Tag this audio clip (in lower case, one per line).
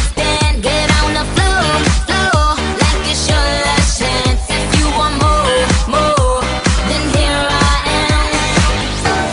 music